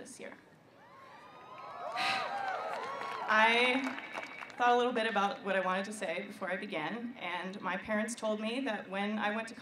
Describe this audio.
Clapping noise followed by women speaking